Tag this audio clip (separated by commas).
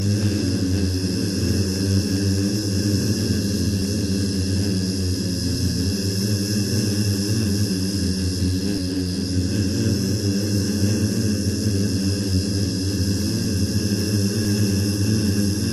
Wild animals, Animal, Human voice, Insect, Buzz